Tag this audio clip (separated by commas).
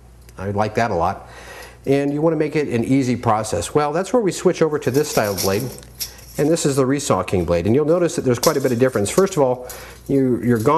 Speech